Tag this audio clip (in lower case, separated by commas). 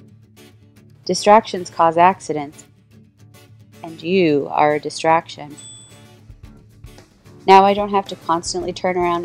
music, speech